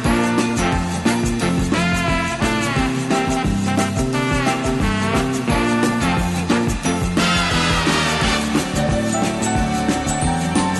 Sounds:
orchestra
music

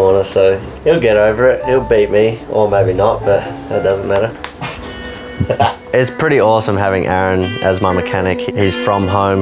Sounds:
speech
music

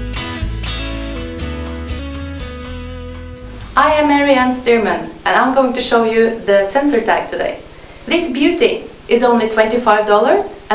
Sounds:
speech
music

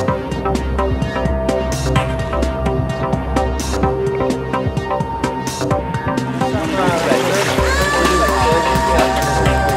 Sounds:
music

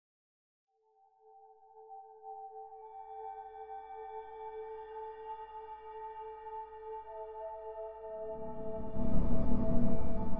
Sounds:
ambient music
music

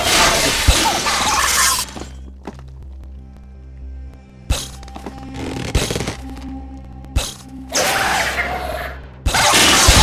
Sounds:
music

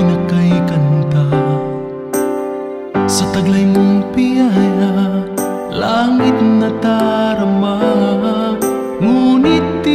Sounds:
music

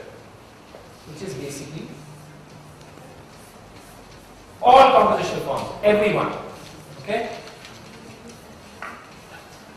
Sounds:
man speaking
speech

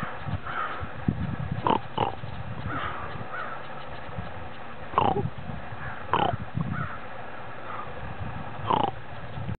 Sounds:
animal

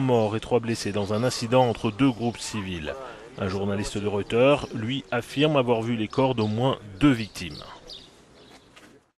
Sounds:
speech

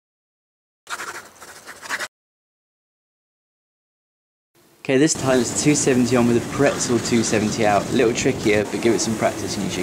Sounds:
speech

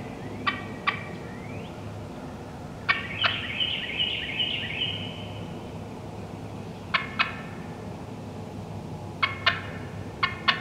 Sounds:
turkey gobbling

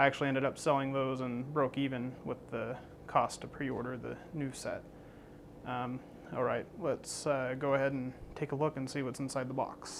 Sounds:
speech

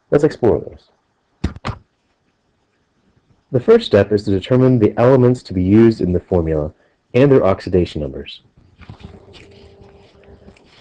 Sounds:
speech

